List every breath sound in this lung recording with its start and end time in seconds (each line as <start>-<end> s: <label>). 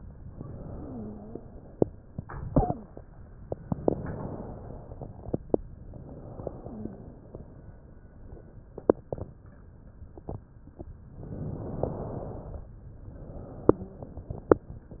0.69-1.40 s: wheeze
3.75-5.34 s: inhalation
5.87-8.79 s: exhalation
6.41-7.13 s: wheeze
11.15-12.70 s: inhalation
12.88-15.00 s: exhalation
13.61-14.16 s: wheeze